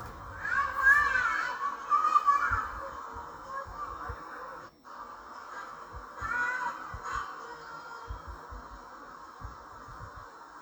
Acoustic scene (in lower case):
park